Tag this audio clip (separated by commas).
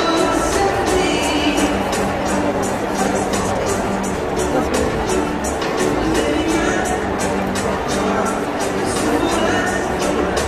Speech, inside a public space, Music